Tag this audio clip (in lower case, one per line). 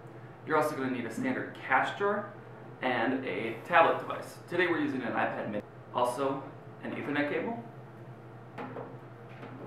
speech